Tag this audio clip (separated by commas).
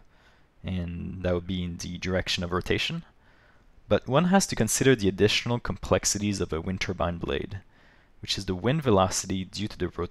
Speech